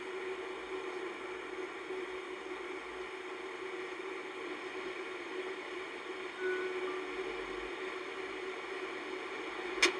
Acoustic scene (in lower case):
car